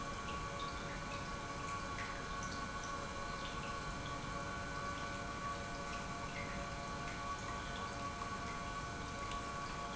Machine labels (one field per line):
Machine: pump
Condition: normal